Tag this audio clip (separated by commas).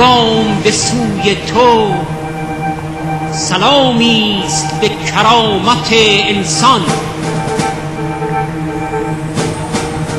Music, Speech